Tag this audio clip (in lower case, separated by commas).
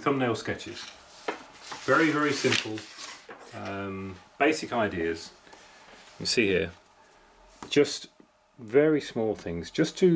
wood, speech